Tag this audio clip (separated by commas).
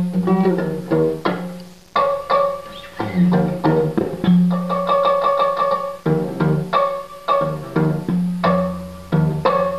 Music